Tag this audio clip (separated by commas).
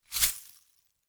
Glass